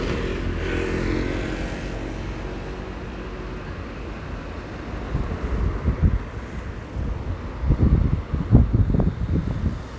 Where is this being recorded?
on a street